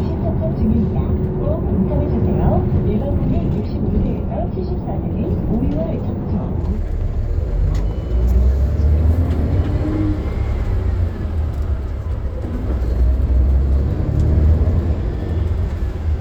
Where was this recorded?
on a bus